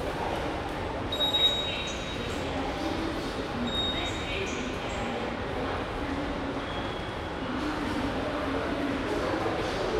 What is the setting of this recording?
subway station